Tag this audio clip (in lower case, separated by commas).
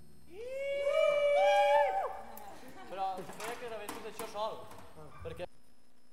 human voice, shout